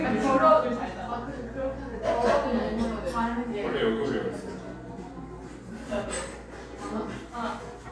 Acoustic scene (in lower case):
cafe